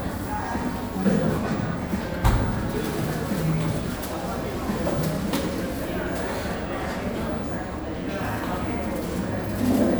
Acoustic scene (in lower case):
cafe